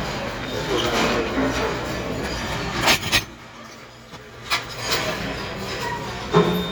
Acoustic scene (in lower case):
restaurant